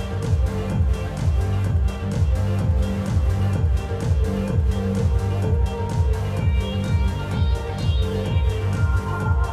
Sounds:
Music, Techno, Dance music

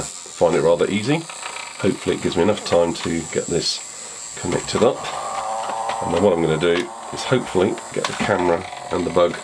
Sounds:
inside a small room, Speech

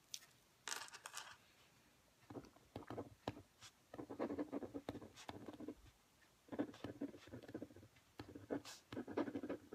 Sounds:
Writing

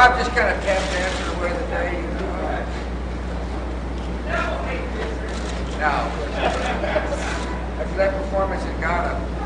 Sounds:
Speech

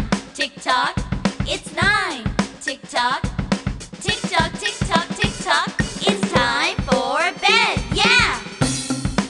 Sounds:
Music

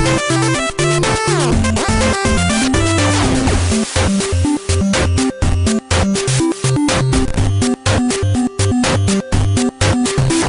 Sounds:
Music

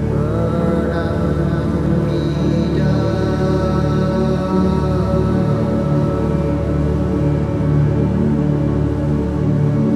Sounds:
Music, Mantra

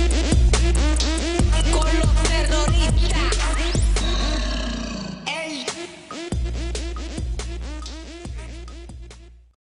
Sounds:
Music

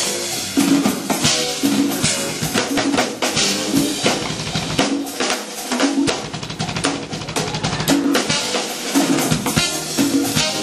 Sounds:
Snare drum, Percussion, Rimshot, Drum roll, Drum kit, Drum, Bass drum

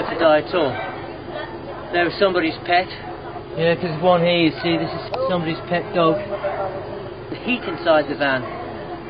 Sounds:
Speech

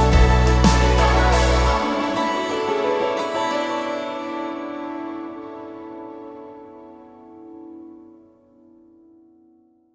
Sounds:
Music

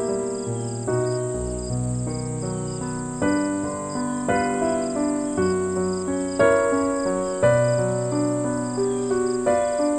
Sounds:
New-age music, Music

